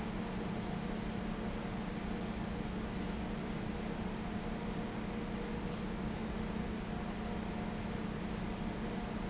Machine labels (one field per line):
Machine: fan